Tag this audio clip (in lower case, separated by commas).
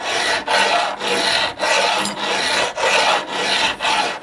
tools